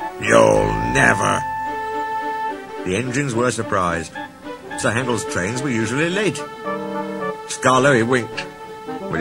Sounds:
speech, music

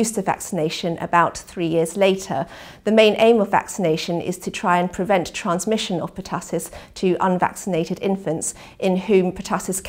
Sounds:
speech

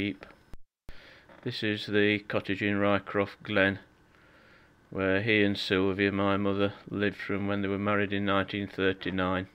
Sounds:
speech

